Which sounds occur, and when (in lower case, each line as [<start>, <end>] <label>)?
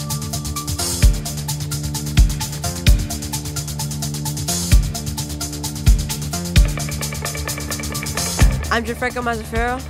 [0.00, 9.85] music
[8.64, 9.79] man speaking